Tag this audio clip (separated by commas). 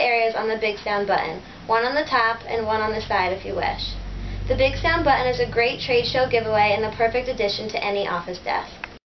Speech